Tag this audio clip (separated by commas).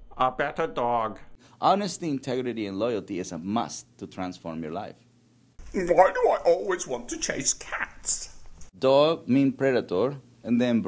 Speech